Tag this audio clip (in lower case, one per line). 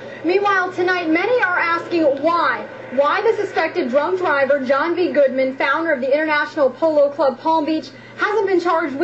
speech